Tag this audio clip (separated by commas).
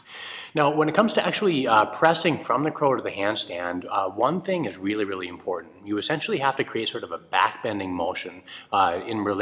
Speech